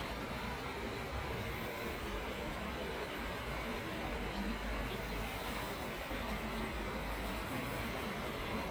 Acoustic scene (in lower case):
park